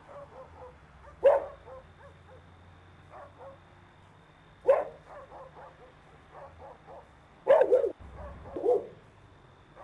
A dog is barking